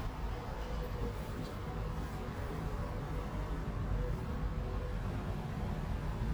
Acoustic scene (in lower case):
elevator